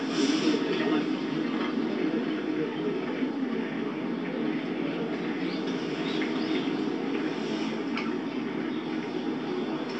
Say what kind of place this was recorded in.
park